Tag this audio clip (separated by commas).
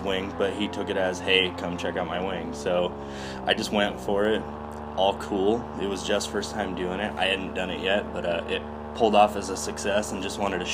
Speech